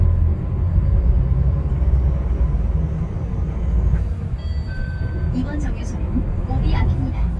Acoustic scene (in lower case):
bus